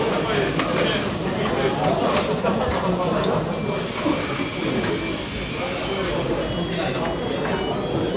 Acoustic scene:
cafe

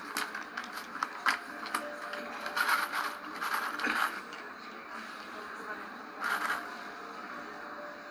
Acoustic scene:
cafe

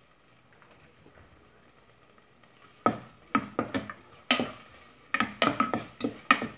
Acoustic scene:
kitchen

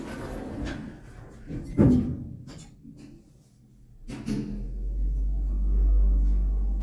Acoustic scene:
elevator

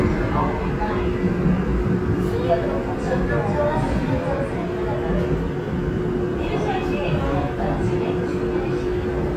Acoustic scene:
subway train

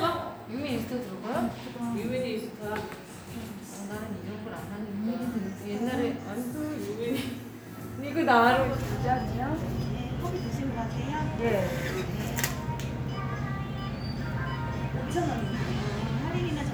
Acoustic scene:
cafe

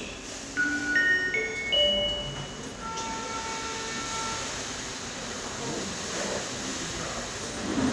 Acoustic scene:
subway station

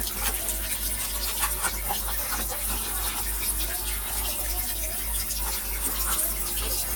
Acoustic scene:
kitchen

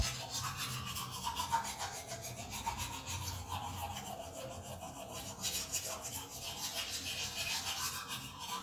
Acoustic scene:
restroom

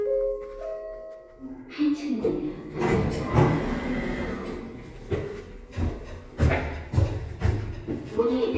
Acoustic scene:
elevator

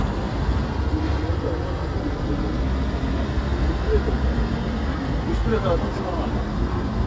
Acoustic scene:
residential area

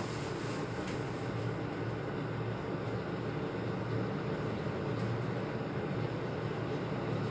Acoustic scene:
elevator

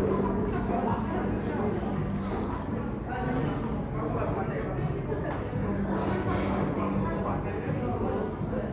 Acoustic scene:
cafe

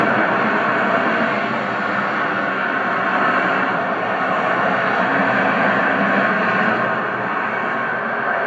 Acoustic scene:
street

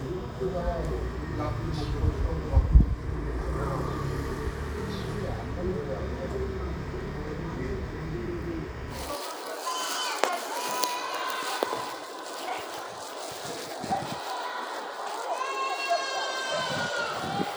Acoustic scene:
residential area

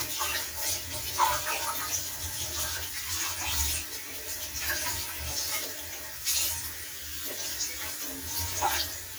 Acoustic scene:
kitchen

